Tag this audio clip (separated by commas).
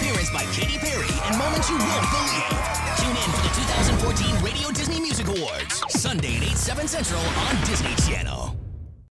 Speech, Soundtrack music, Music